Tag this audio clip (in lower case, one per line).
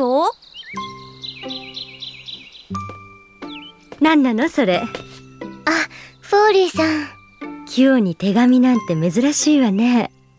music
speech
outside, urban or man-made